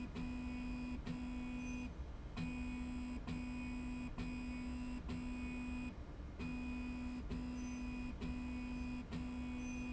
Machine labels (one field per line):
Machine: slide rail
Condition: normal